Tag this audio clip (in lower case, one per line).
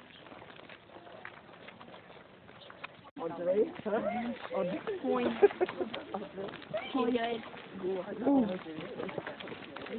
speech